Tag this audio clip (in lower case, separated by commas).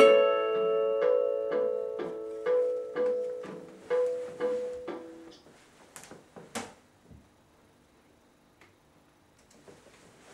music, plucked string instrument, guitar, musical instrument